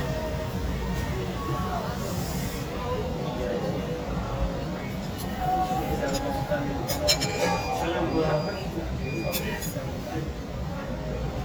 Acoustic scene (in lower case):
restaurant